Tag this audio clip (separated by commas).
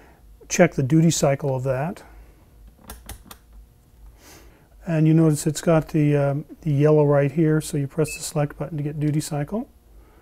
Speech, inside a small room